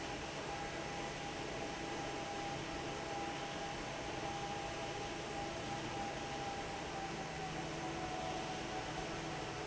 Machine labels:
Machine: fan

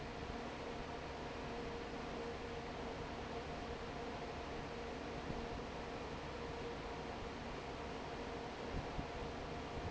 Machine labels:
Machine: fan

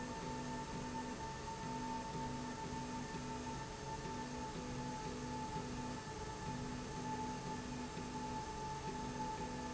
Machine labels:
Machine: slide rail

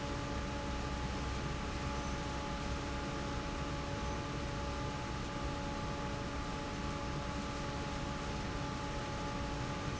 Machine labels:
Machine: fan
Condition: normal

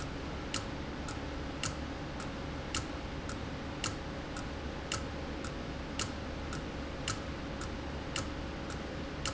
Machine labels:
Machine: valve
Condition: abnormal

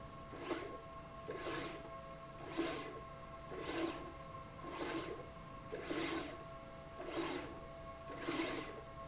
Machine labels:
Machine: slide rail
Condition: abnormal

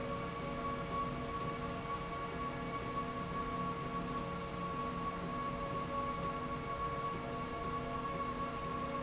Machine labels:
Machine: slide rail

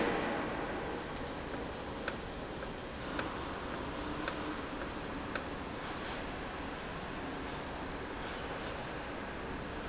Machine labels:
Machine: valve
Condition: normal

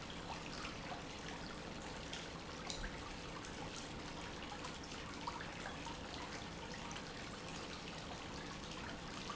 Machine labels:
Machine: pump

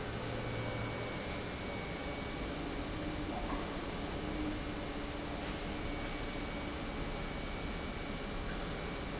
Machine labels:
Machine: pump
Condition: normal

